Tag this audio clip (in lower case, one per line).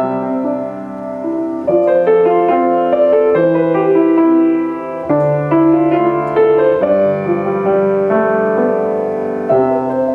music